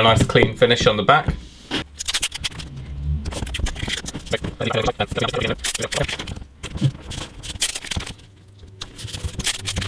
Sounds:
inside a small room
speech

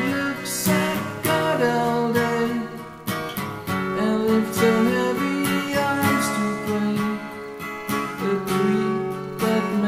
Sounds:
plucked string instrument
music
acoustic guitar
guitar
strum
musical instrument

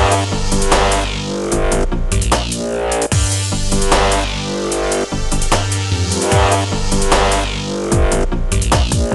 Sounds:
percussion
drum

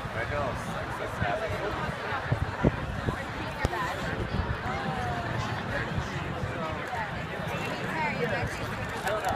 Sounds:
speech

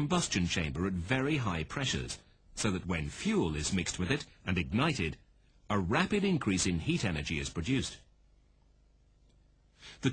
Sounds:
speech

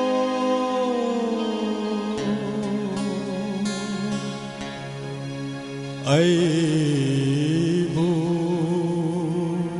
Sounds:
singing
inside a large room or hall
music

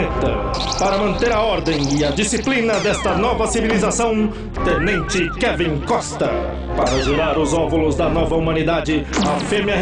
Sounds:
speech
music

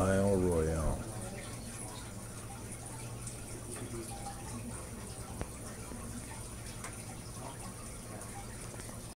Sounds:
speech

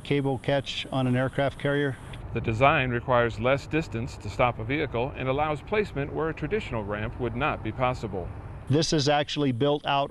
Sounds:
speech
vehicle

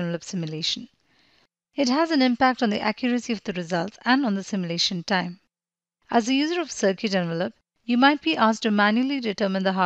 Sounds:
speech

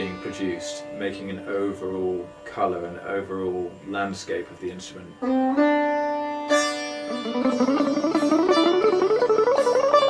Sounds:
playing sitar

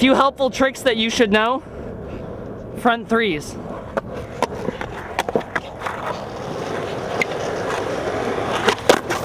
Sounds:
speech

